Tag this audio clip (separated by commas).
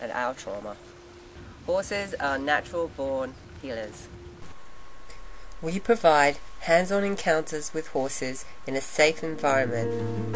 Speech